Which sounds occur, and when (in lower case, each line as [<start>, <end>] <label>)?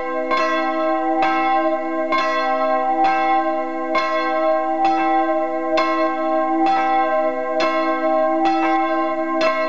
[0.00, 9.65] church bell
[0.00, 9.65] wind